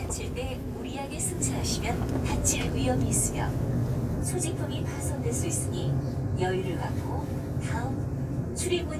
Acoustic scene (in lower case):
subway train